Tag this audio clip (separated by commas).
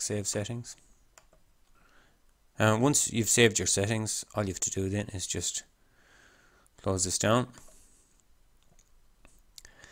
Clicking, Speech